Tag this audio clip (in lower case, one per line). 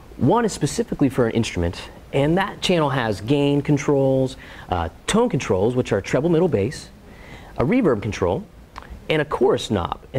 speech